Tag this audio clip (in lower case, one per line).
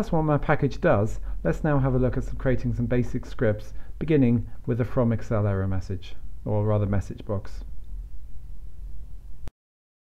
speech